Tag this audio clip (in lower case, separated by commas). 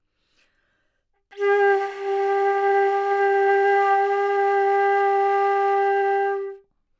music, musical instrument, woodwind instrument